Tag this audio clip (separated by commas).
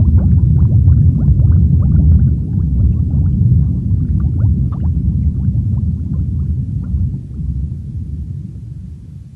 Boiling